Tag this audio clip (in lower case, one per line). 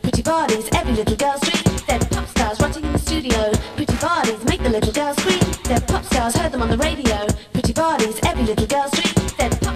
music